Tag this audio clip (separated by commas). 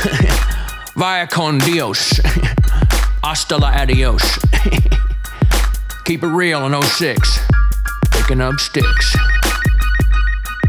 rapping